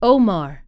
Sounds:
Speech, Female speech, Human voice

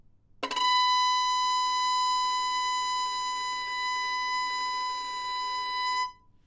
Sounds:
Music, Musical instrument, Bowed string instrument

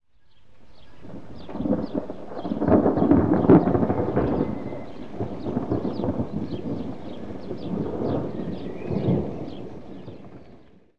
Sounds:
Thunderstorm, Thunder

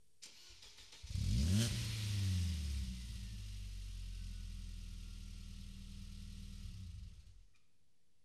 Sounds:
Accelerating, Vehicle, Car, Engine starting, Engine, Motor vehicle (road)

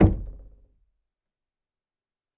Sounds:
Domestic sounds, Knock, Door

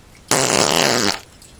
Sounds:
Fart

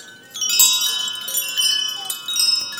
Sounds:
Chime, Bell

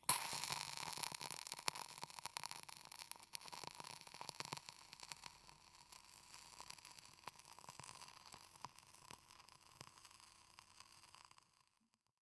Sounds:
Crackle

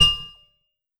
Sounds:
Music, Percussion, Mallet percussion, Musical instrument

